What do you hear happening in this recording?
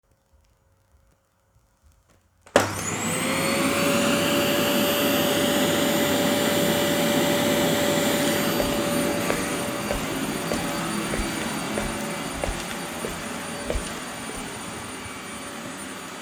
I turned on the vacuum cleaner and walked across the living room while cleaning the floor.